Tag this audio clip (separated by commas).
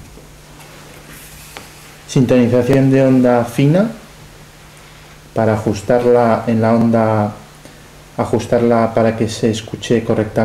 Speech